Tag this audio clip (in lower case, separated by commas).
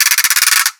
ratchet, mechanisms